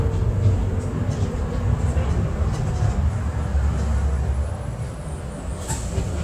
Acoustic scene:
bus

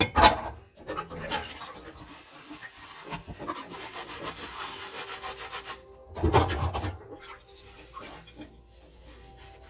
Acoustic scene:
kitchen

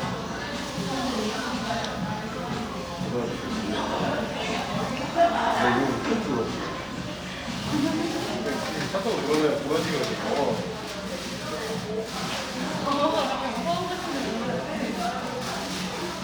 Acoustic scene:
cafe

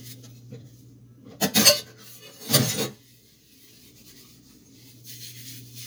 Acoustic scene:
kitchen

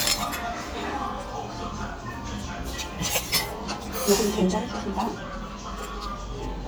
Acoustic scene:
restaurant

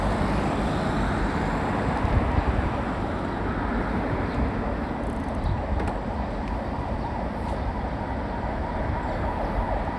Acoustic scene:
residential area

